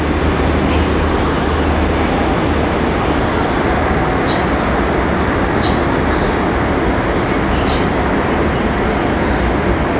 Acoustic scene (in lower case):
subway train